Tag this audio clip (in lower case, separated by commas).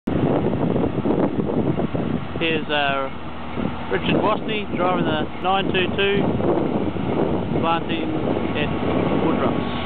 speech, vehicle, outside, rural or natural